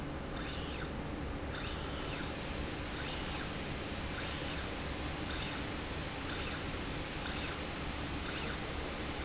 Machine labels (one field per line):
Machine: slide rail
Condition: normal